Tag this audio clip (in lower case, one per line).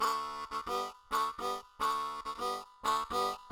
musical instrument
harmonica
music